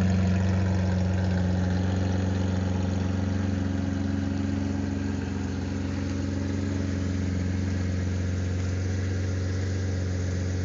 A vehicle idles